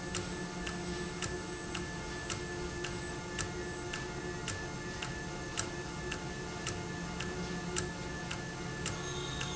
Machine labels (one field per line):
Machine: valve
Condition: normal